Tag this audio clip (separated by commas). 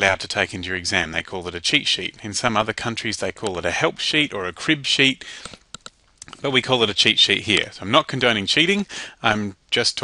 Speech